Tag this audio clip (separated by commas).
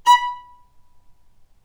Music, Musical instrument, Bowed string instrument